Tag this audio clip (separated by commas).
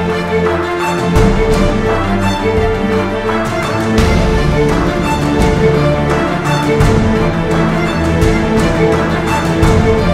Soundtrack music, Music